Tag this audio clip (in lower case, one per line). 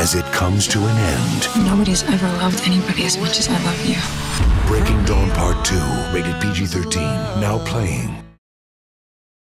speech
music